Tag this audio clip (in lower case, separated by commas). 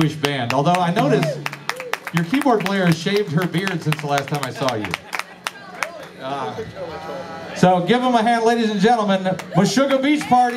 music, speech